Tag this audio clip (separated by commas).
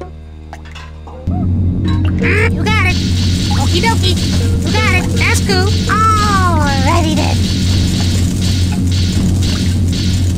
Music, Speech